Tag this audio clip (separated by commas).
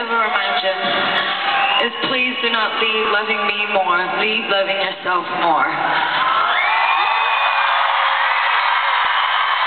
Female speech, Speech, Narration